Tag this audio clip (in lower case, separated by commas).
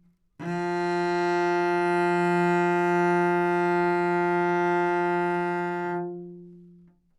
bowed string instrument, music, musical instrument